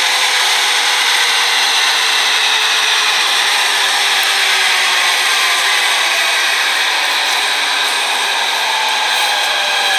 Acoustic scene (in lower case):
subway station